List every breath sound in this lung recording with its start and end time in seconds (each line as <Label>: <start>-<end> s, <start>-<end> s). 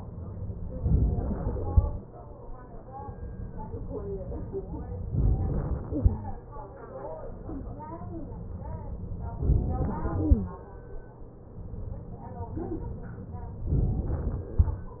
Inhalation: 5.13-5.95 s, 13.69-14.52 s
Exhalation: 10.08-11.64 s